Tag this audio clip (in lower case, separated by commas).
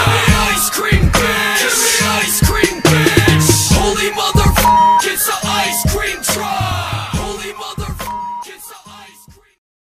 music